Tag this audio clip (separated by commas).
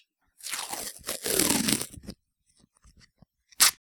duct tape, Domestic sounds